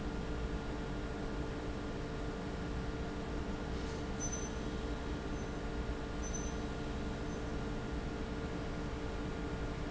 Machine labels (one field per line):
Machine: fan